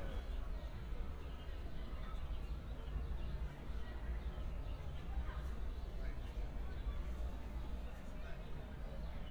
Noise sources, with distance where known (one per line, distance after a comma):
person or small group talking, far